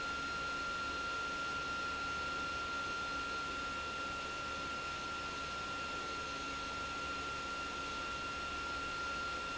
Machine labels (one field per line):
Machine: pump